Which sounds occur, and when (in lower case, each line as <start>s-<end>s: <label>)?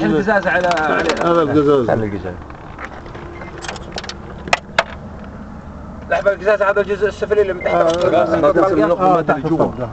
0.0s-2.4s: man speaking
0.0s-9.9s: conversation
0.0s-9.9s: wind
0.4s-1.3s: generic impact sounds
2.3s-4.1s: generic impact sounds
3.3s-3.5s: beep
4.3s-4.6s: generic impact sounds
4.8s-5.0s: generic impact sounds
6.0s-9.9s: man speaking
7.6s-7.8s: beep
7.8s-8.1s: generic impact sounds
9.7s-9.9s: beep